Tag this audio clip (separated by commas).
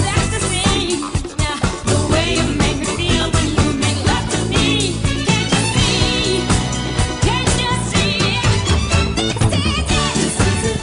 Disco